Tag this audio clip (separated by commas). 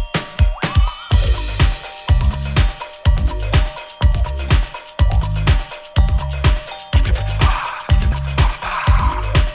Music